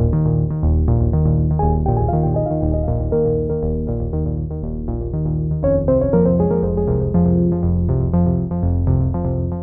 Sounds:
music

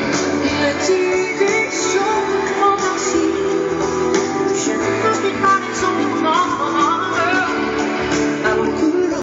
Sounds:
music, jazz, blues

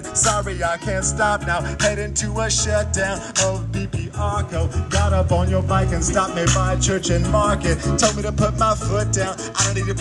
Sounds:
music

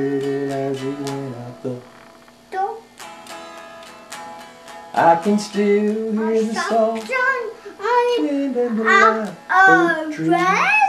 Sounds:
music, speech, child singing

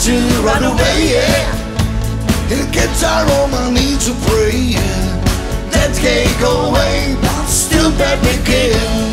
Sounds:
music

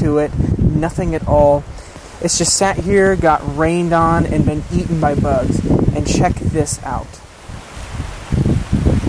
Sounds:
outside, rural or natural, speech

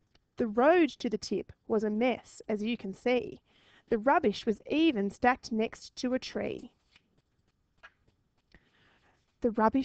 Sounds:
speech

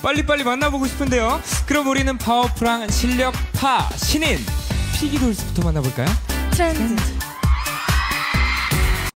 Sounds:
speech, music

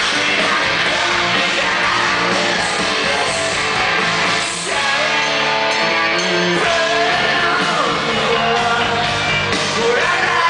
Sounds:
music, inside a large room or hall

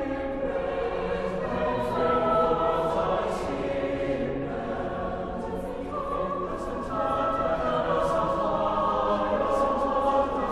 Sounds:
singing choir

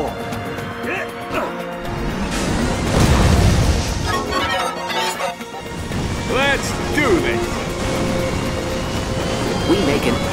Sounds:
music, speech

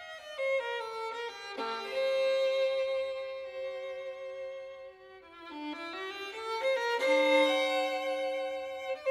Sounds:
musical instrument, violin, playing violin, music

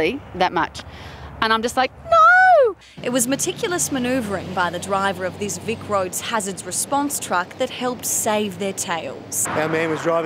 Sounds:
speech

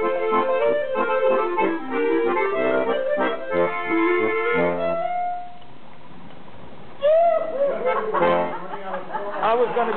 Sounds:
jazz, speech, music

